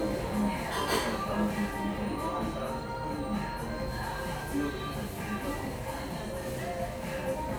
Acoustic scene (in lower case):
cafe